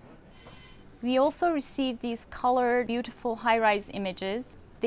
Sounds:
speech

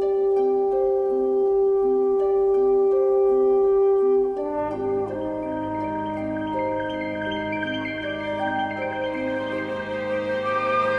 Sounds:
glockenspiel
mallet percussion
xylophone

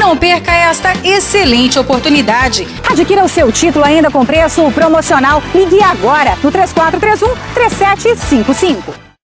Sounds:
music
speech

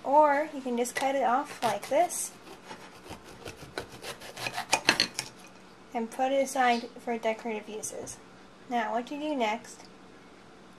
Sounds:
speech

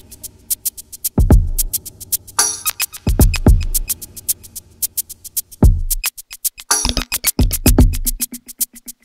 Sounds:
music
electronica

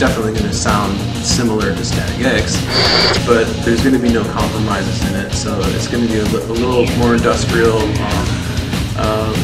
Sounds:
disco
speech
music

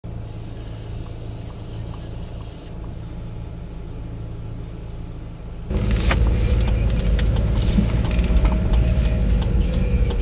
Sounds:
vehicle
car

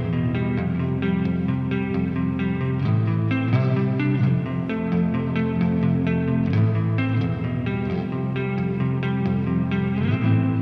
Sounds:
music

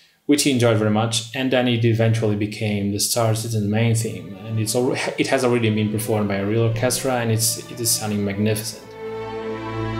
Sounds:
speech
music

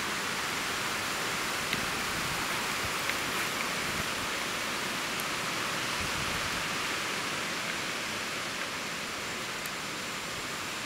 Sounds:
rustling leaves
wind noise (microphone)

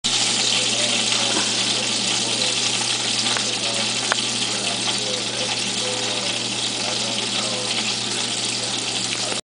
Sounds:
speech

